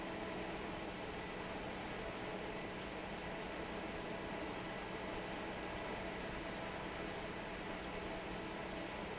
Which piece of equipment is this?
fan